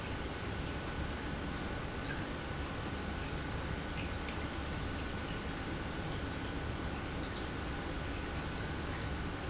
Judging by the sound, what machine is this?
pump